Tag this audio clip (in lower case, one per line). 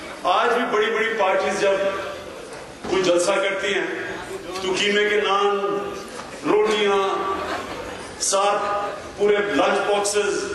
narration
speech
male speech